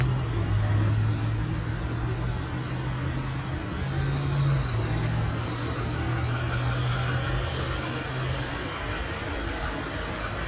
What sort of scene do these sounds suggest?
street